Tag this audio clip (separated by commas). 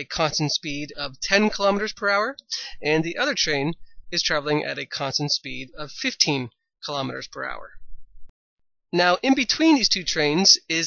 Speech, Narration